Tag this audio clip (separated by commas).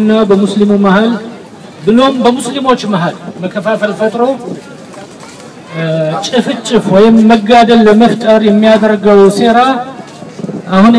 man speaking, Narration, Speech